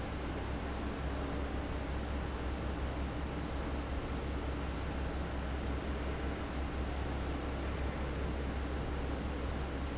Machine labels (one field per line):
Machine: fan